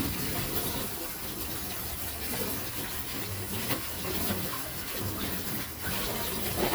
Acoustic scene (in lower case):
kitchen